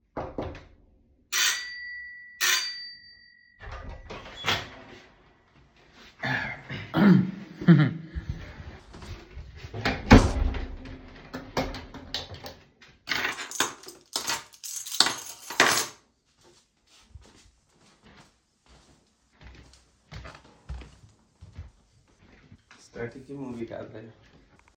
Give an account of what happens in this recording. My friend rings the bell from outside, and I open the door. He then comes in and the door is closed, accompanied with the sound of the keychain and footsteps of two people.